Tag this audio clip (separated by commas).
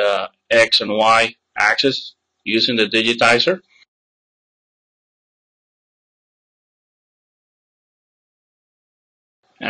inside a small room, Speech, Silence